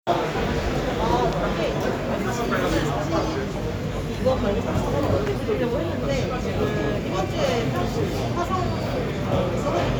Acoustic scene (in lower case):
crowded indoor space